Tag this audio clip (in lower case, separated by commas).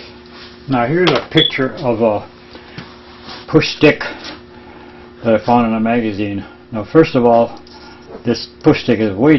speech